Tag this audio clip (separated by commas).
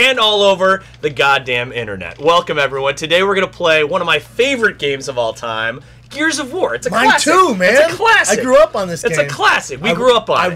Speech